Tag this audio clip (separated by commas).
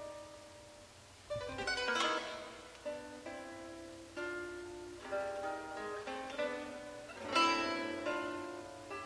Music